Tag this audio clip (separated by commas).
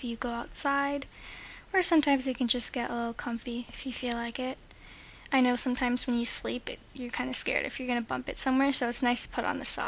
Speech